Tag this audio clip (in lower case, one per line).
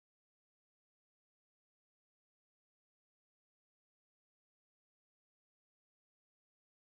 silence